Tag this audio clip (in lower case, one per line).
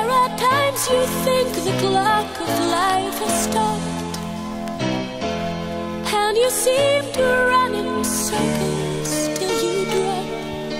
music